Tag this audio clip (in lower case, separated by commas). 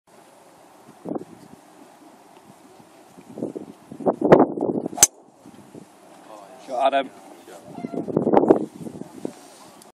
speech